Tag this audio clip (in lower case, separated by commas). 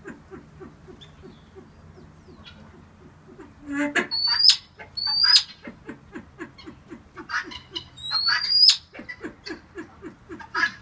pheasant crowing